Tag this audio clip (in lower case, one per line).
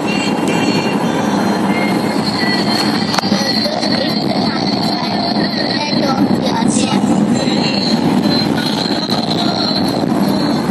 car
vehicle
music